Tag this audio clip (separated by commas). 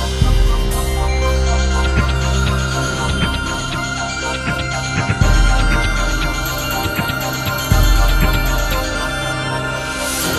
Music